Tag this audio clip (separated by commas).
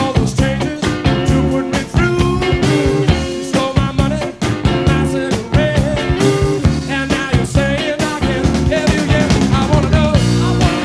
Music, Ska